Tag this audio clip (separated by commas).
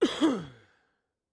Respiratory sounds, Cough